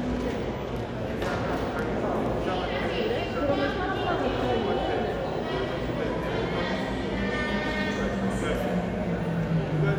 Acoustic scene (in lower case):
crowded indoor space